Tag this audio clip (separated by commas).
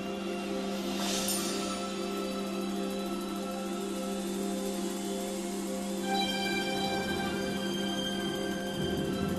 Music